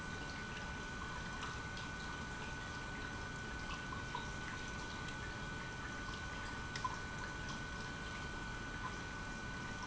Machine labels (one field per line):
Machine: pump